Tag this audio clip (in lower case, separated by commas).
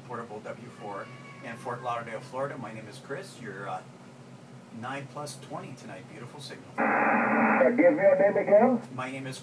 speech, radio